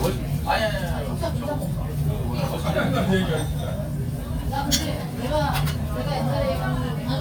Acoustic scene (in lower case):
crowded indoor space